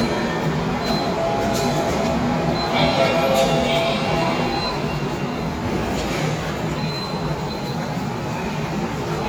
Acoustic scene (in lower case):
subway station